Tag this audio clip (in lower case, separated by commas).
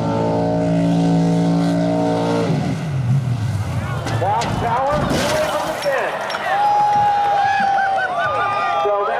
boat, motorboat